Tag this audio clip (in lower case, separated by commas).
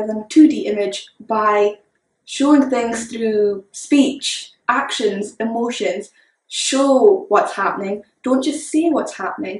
speech